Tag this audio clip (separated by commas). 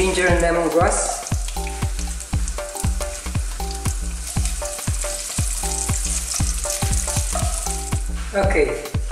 Frying (food), Stir, Sizzle